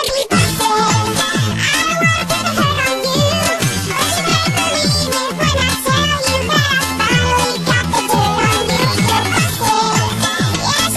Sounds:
Music

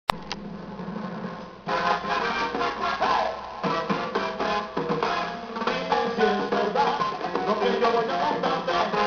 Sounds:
Music of Latin America, Music, Salsa music

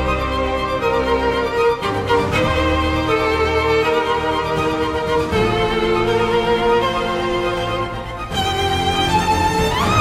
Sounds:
people booing

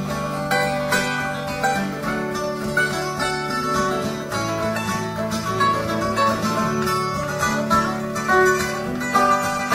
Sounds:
Music, Bluegrass, Musical instrument, Country, Guitar, Plucked string instrument

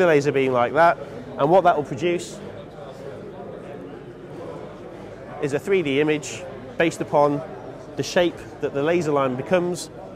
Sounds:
Speech

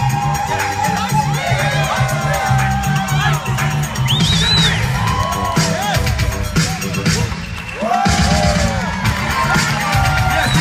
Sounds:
Music, Speech

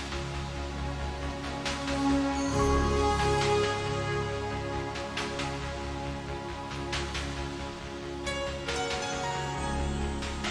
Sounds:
Music

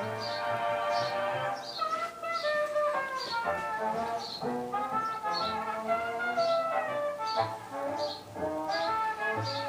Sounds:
inside a small room, Music

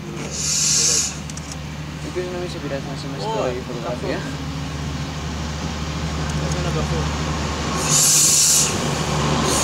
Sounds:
Train, train wagon, Subway, Rail transport

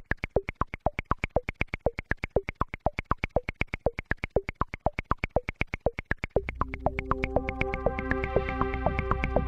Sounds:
Electronic music, Music

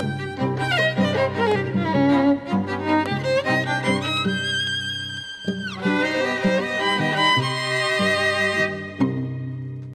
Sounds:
Music

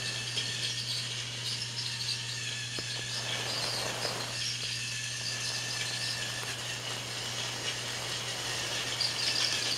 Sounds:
Train

